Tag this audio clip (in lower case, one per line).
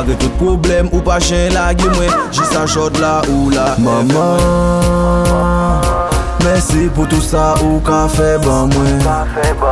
music